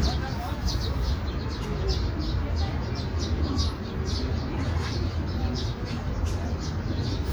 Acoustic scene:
park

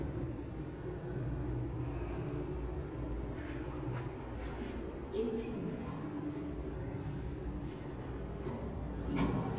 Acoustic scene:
elevator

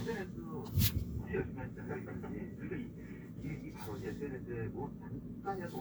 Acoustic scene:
car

